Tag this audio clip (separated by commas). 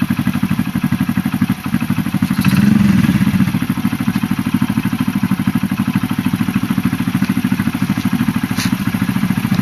Vehicle, Medium engine (mid frequency), Engine